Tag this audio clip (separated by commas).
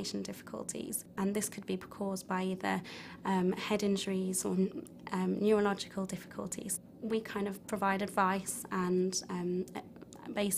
woman speaking, Speech